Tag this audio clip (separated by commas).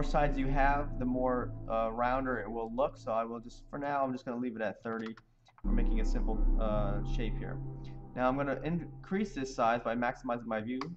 Speech, Music